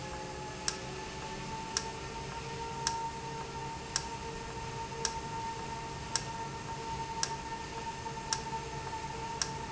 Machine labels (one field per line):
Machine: valve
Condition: normal